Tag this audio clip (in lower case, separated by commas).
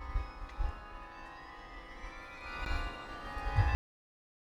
chime, bell